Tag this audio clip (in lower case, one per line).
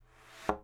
thud